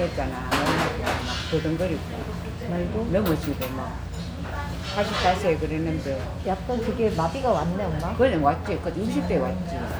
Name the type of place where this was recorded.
restaurant